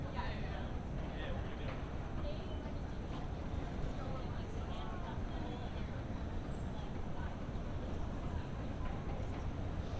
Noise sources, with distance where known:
person or small group talking, near

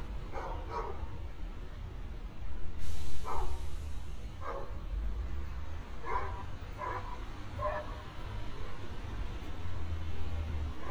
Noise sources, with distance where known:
dog barking or whining, near

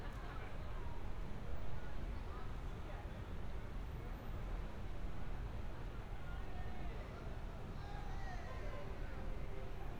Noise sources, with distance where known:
person or small group shouting, far

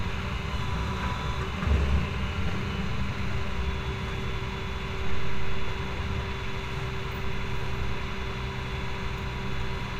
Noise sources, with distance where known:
engine of unclear size

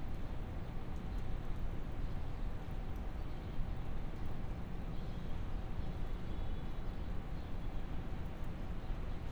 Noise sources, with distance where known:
background noise

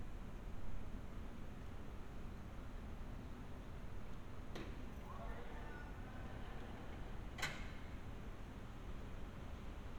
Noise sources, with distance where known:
background noise

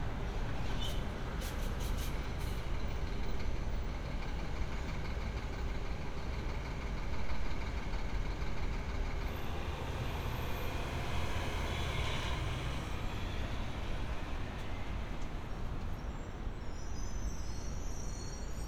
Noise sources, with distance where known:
large-sounding engine, near

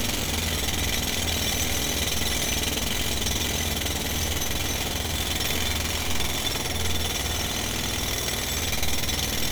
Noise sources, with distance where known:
jackhammer, near

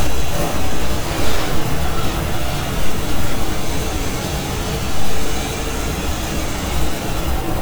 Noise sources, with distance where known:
unidentified impact machinery

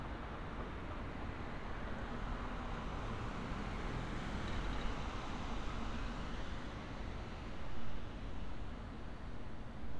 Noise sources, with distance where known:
background noise

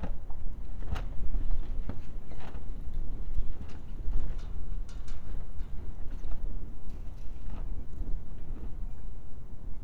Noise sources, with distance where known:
non-machinery impact, near

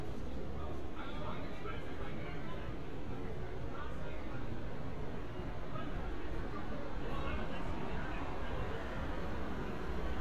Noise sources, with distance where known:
person or small group talking

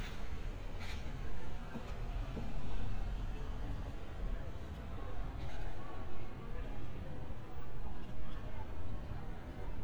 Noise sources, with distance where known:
background noise

